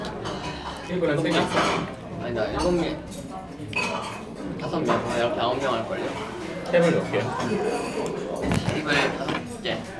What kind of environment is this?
crowded indoor space